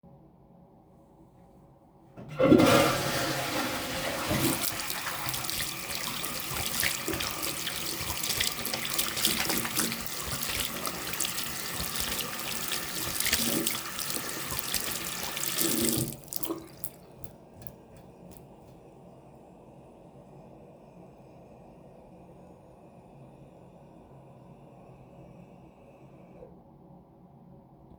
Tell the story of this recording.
I flushed the toilet, washed my hands, shook most of the water off, then the toilet was filled up again with water.